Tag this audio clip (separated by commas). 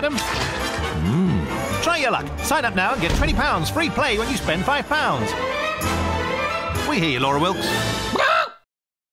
Music, Speech